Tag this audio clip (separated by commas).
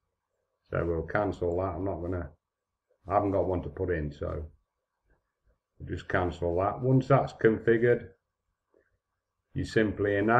Speech